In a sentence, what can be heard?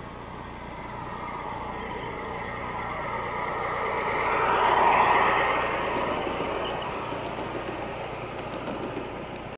Speeding sound, then a low chirping sound